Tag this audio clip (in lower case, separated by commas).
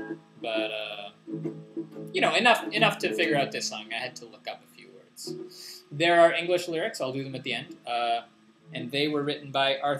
music, male singing, speech